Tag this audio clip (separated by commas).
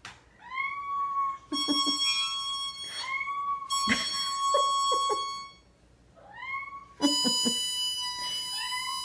Animal, Cat, Music, Harmonica